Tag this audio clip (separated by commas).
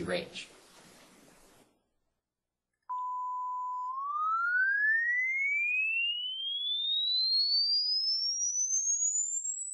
Speech